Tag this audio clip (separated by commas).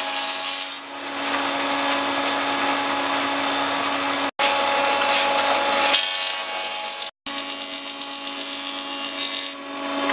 planing timber